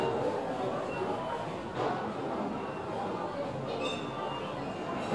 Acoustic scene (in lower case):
crowded indoor space